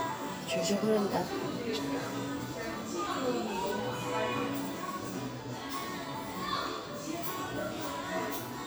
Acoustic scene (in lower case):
cafe